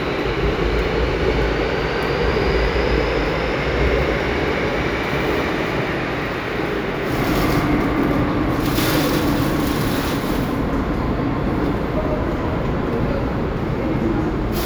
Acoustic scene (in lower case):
subway station